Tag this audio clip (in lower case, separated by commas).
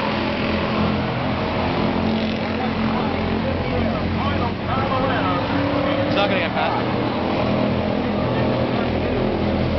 motor vehicle (road), speech, car, vehicle